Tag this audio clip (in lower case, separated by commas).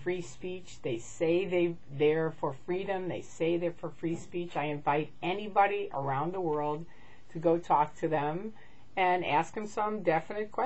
woman speaking, speech